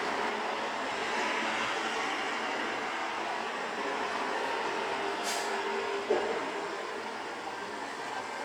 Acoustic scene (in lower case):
street